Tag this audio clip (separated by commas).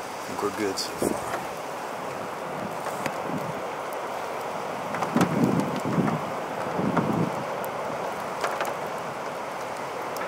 tornado roaring